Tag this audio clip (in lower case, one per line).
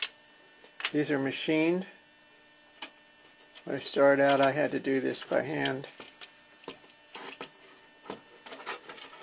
speech